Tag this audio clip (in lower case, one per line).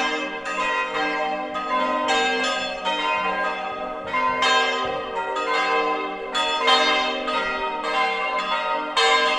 change ringing (campanology)